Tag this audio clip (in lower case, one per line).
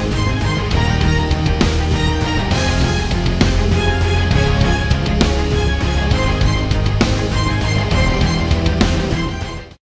music